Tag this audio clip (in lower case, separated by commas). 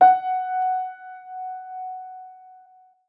piano, keyboard (musical), music, musical instrument